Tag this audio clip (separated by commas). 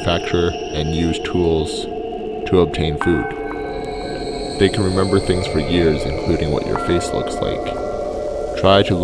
Music, Speech